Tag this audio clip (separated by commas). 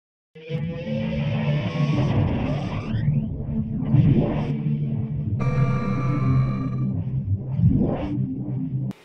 inside a small room, Music, Speech